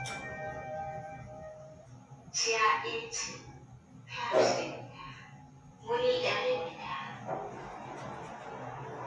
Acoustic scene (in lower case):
elevator